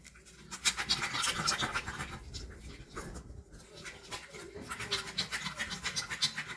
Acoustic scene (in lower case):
restroom